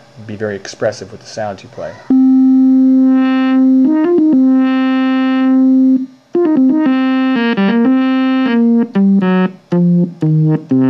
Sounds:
speech, music, synthesizer

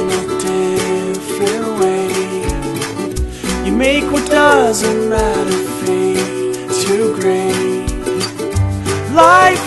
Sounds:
music

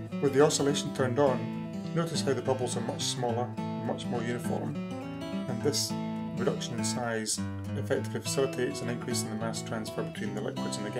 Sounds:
speech, music

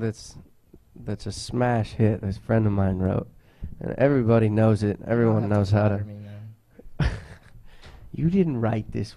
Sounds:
speech

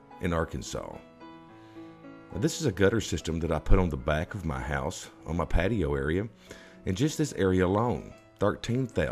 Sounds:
speech, music

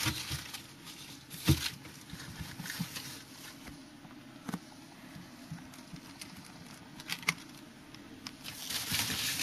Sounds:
inside a small room

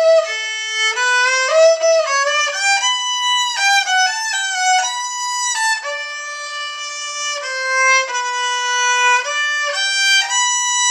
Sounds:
fiddle, musical instrument, music

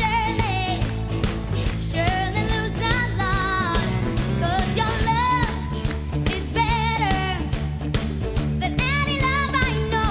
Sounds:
music

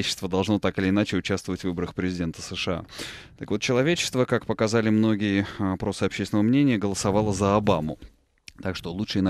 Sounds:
inside a small room, speech

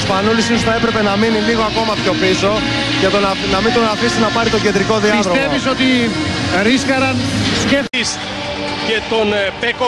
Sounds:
music, speech

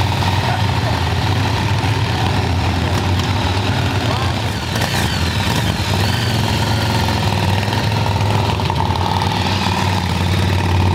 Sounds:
vehicle, motor vehicle (road), motorcycle

